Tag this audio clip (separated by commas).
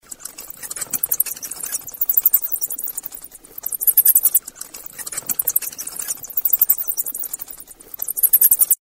Animal, Wild animals